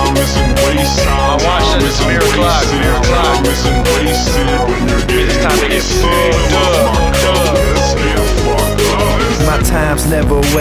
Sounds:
music

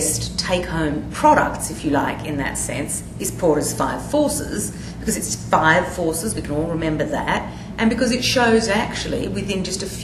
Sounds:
speech

